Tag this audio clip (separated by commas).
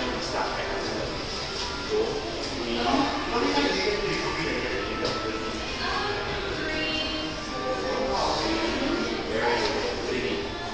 Music, Speech